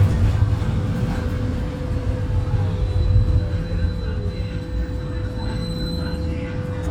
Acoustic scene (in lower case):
bus